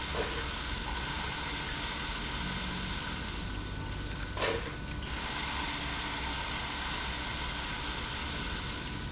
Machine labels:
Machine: pump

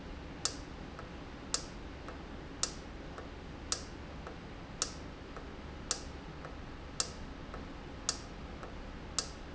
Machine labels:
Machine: valve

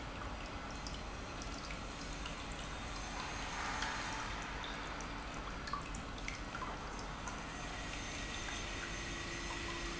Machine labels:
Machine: pump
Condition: normal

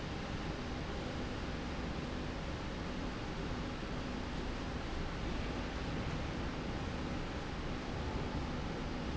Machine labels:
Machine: slide rail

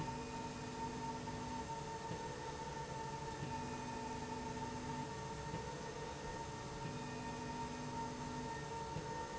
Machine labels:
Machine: slide rail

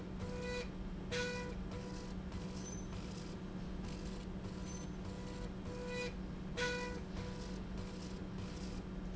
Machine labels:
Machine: slide rail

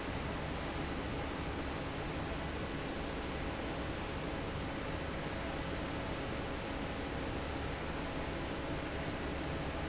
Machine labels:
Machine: fan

